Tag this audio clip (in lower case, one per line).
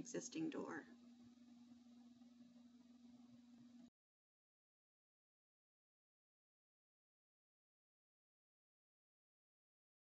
speech